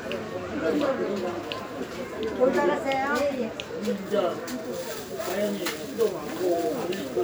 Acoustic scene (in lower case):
park